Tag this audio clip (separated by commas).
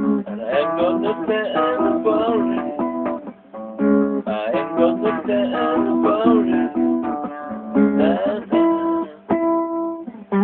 Musical instrument, Plucked string instrument, Music, Guitar